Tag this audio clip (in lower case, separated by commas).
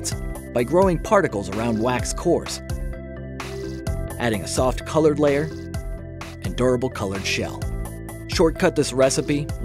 speech, music